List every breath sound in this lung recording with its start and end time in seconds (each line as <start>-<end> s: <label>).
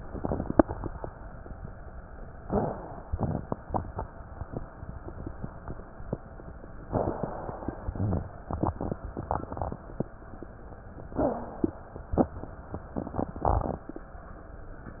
2.42-3.06 s: inhalation
2.42-3.06 s: rhonchi
3.12-3.83 s: exhalation
6.84-7.92 s: inhalation
7.91-8.43 s: exhalation
7.91-8.43 s: rhonchi
11.17-11.68 s: wheeze
11.17-12.08 s: inhalation